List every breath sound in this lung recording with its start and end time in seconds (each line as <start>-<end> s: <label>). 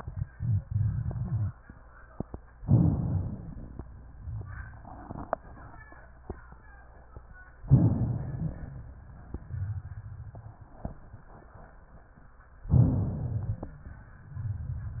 2.61-3.84 s: inhalation
2.61-3.84 s: crackles
7.65-8.97 s: inhalation
12.71-13.85 s: inhalation